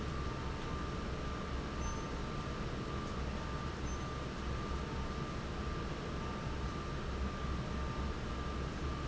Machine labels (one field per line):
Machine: fan